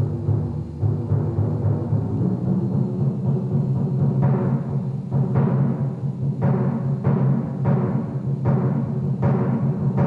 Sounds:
Musical instrument, Timpani, Music

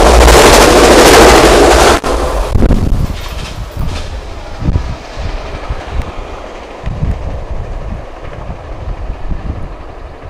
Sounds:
Rail transport, Vehicle, Train

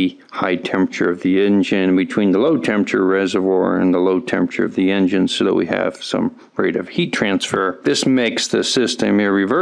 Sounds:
Speech

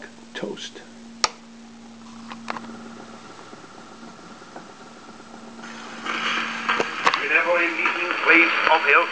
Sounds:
Speech

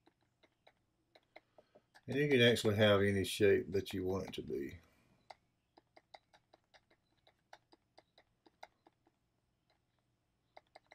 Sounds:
inside a small room, Speech

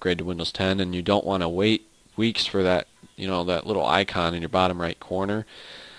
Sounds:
Speech

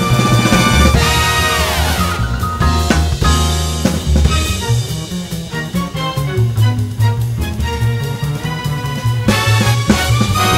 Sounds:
Theme music, Music

